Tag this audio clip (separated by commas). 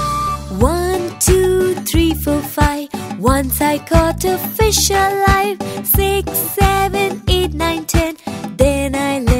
Music for children, Music, Singing